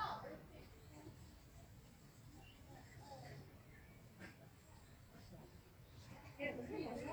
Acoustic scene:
park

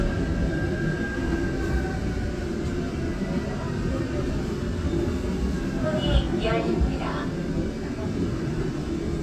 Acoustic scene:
subway train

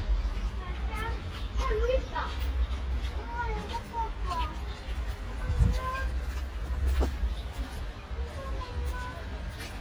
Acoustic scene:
residential area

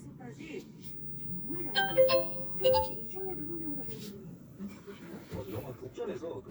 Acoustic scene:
car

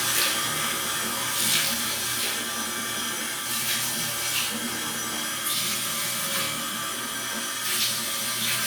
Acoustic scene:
restroom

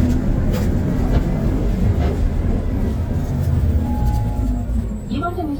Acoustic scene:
bus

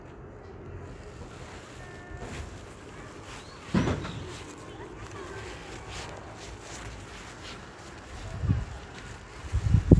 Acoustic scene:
park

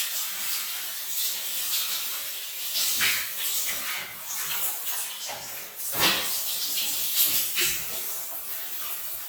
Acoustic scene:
restroom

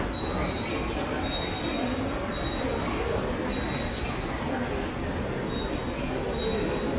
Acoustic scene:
subway station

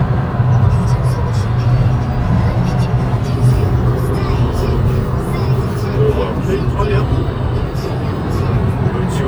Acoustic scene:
car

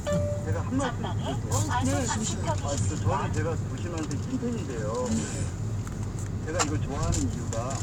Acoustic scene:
car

